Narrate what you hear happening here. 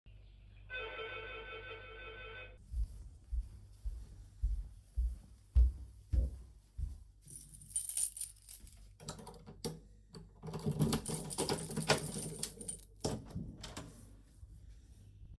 The bell started to ring so I went to the apartment door, grabed the keys, and opened the door.